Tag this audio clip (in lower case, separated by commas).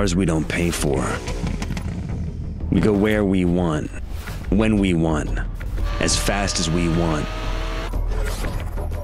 car, vehicle